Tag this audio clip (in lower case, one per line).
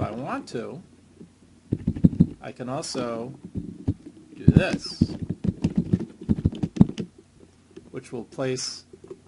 speech
inside a small room